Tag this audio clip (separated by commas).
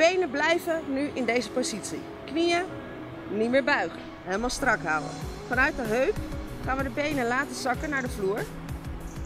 Speech, Music